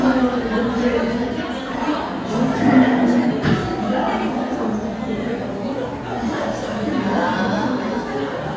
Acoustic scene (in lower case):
crowded indoor space